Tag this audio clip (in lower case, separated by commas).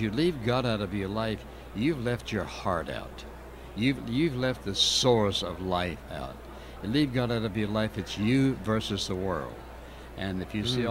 speech